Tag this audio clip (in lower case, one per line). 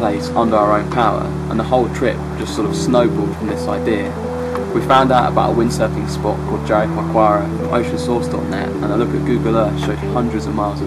music
speech